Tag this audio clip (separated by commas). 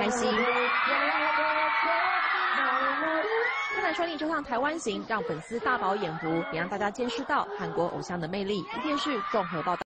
Speech